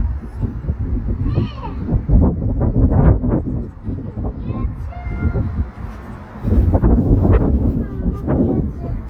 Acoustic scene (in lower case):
residential area